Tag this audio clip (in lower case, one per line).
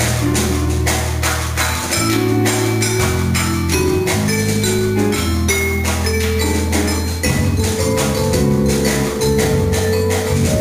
musical instrument
playing vibraphone
percussion
music
vibraphone